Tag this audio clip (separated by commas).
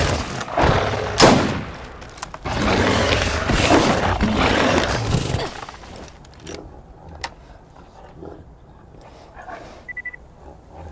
outside, rural or natural